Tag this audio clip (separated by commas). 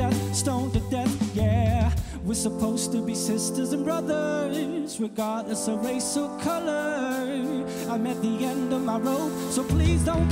Music